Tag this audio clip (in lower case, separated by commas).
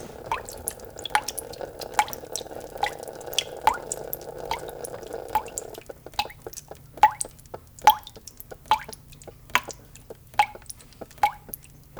drip, liquid